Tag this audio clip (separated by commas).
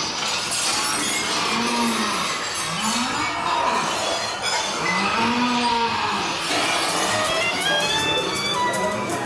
Music